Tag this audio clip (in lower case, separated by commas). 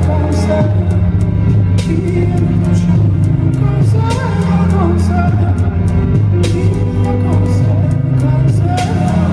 soul music, music